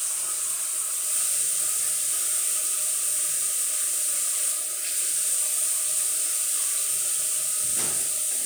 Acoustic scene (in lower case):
restroom